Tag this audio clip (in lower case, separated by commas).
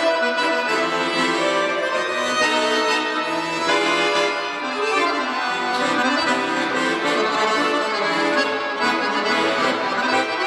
music